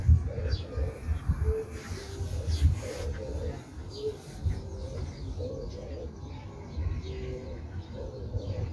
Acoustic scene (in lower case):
park